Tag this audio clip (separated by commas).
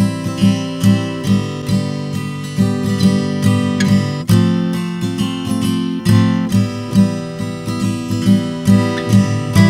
Music, playing acoustic guitar, Acoustic guitar